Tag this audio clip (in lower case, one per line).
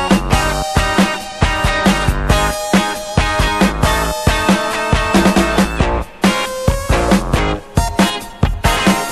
music